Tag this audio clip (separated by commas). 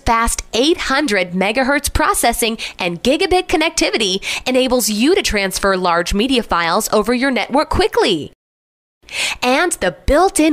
Speech